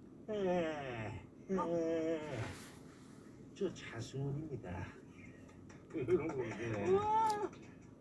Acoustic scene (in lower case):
car